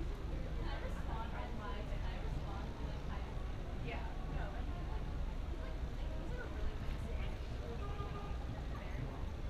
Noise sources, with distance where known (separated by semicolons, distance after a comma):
car horn, far; person or small group talking, near